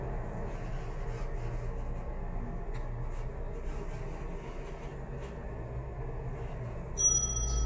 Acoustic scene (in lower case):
elevator